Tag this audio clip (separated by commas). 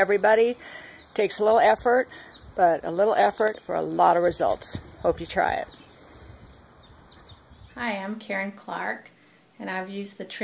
Speech